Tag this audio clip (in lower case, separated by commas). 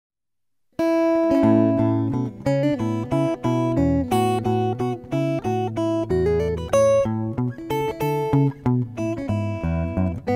acoustic guitar, plucked string instrument, guitar, musical instrument, music